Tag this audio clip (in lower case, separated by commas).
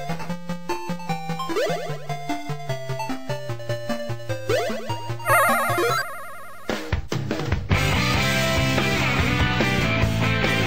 exciting music, video game music, music